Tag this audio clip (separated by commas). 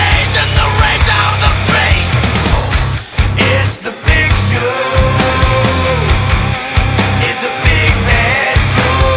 Music